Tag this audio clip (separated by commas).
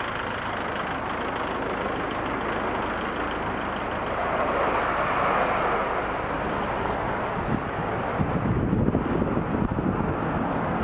Vehicle